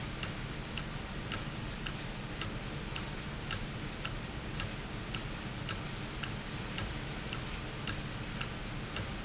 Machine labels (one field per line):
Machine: valve